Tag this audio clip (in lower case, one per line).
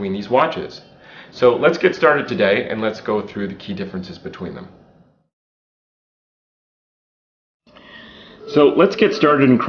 speech